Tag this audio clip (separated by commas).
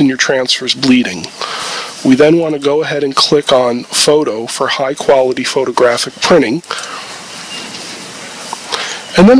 Speech